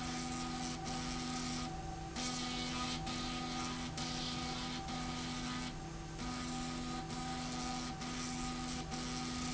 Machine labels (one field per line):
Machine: slide rail